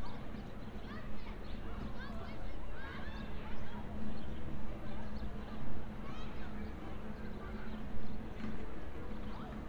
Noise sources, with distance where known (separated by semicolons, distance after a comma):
person or small group shouting